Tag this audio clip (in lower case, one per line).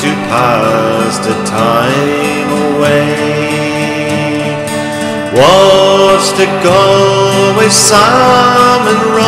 music
country